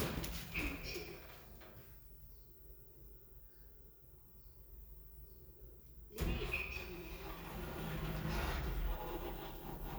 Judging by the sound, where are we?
in an elevator